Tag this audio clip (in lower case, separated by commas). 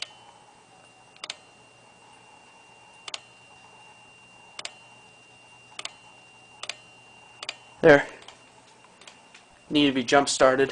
speech